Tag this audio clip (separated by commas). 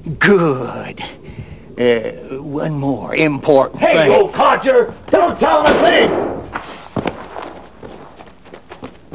Speech